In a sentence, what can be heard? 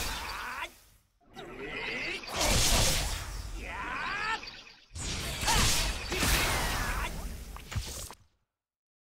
Speaking and screaming with whooshing and explosions